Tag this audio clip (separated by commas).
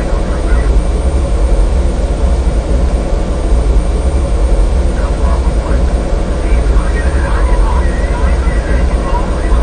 Speech